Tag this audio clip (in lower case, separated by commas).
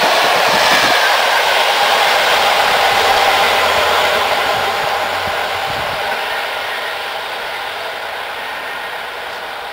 train, railroad car, vehicle, outside, rural or natural